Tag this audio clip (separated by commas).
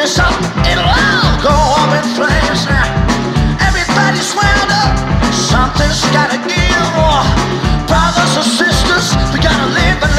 Psychedelic rock, Music